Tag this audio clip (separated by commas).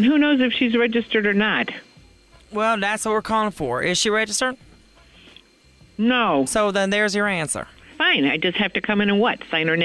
Speech, Music